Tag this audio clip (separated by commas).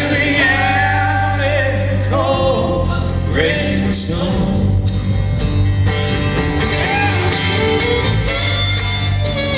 Music